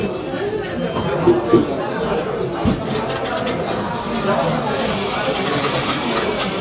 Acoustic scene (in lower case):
cafe